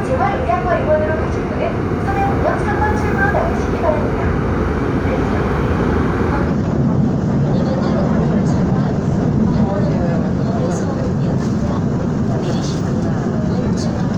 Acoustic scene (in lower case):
subway train